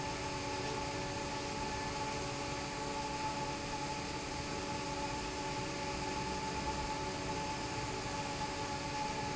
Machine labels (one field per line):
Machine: fan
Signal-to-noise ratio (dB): -6 dB